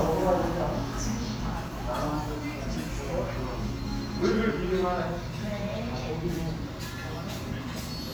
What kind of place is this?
restaurant